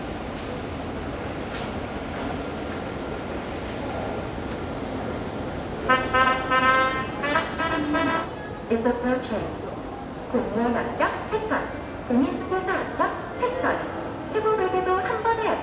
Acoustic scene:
subway station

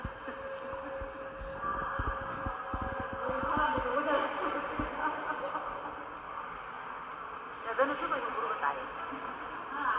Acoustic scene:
subway station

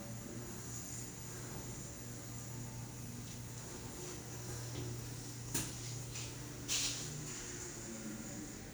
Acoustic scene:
elevator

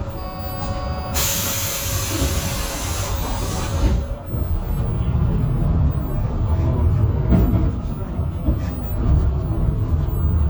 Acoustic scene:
bus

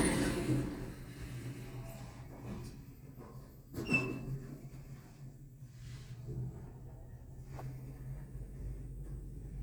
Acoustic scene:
elevator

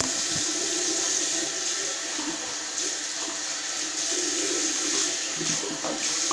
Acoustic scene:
restroom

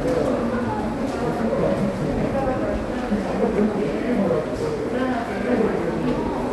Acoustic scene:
subway station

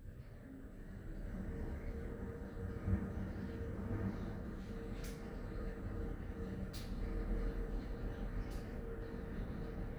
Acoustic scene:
elevator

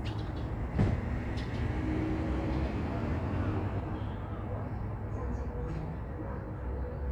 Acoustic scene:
residential area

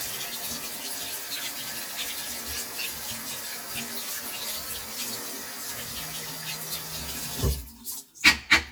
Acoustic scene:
restroom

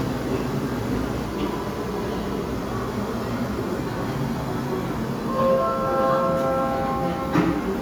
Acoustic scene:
subway station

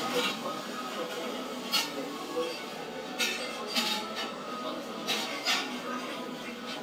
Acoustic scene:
cafe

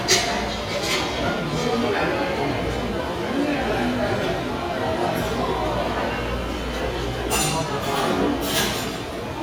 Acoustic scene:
restaurant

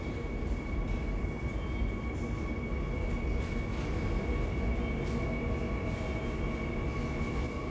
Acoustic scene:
subway station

